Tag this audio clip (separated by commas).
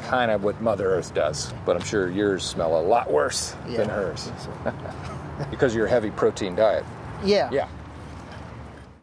Speech